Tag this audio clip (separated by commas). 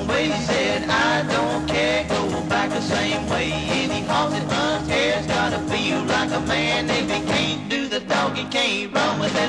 Music